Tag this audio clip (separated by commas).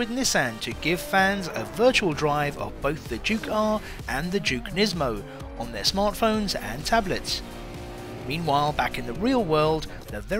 Music, Vehicle, Speech